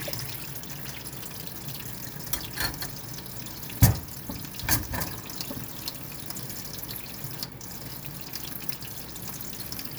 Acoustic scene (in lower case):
kitchen